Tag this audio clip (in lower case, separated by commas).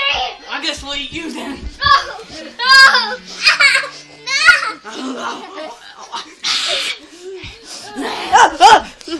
speech